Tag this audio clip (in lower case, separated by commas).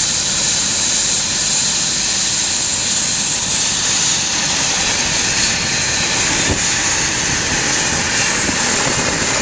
aircraft, helicopter, vehicle